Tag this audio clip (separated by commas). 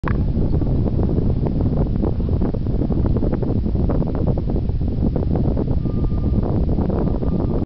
Wind, Wind noise (microphone)